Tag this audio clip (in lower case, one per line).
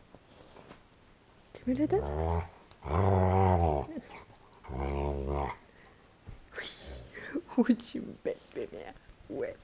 dog growling